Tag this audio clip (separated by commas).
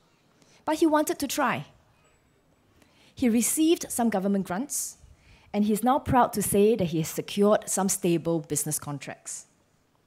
Speech